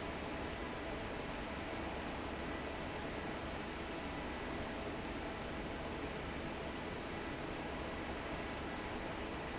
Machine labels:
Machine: fan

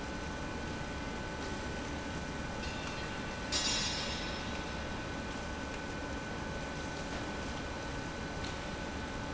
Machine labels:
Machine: pump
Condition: abnormal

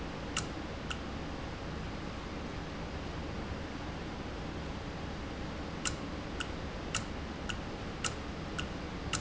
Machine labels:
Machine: valve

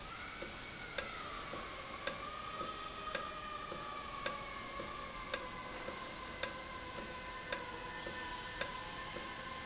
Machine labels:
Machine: valve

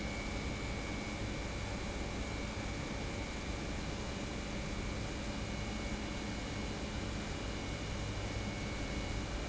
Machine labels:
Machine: pump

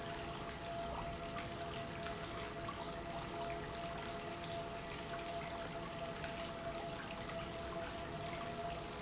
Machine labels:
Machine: pump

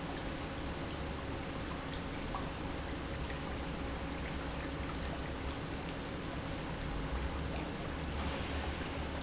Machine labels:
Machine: pump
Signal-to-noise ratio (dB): -6 dB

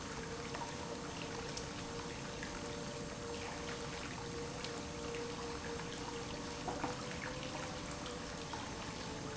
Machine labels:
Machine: pump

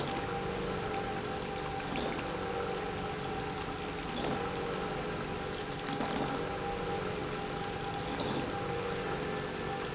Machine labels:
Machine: pump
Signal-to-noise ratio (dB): -6 dB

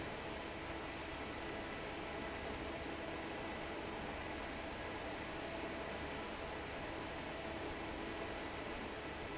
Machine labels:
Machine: fan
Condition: normal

